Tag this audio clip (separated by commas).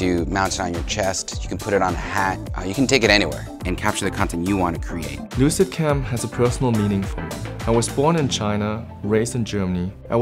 Speech, Music